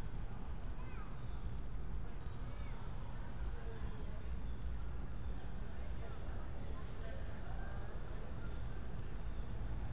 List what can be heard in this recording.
unidentified human voice